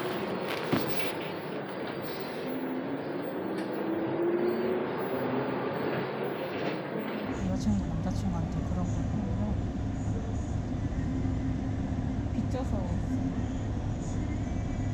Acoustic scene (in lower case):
bus